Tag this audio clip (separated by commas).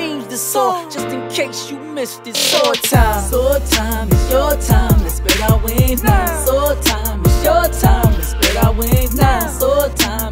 rapping